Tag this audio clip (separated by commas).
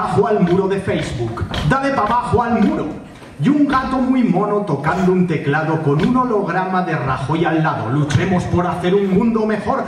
Speech